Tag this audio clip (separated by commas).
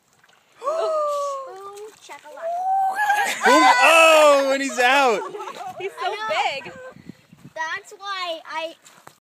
Speech